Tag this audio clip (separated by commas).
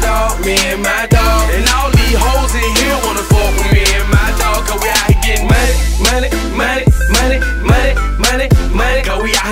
Music